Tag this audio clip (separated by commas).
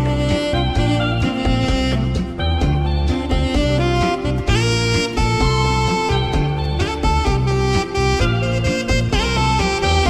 playing saxophone